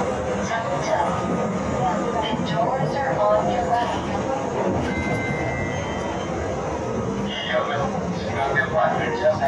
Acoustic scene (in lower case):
subway train